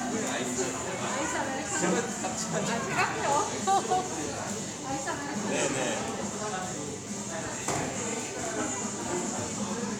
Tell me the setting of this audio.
cafe